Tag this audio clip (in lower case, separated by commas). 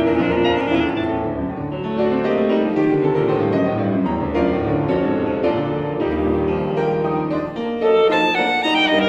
musical instrument, music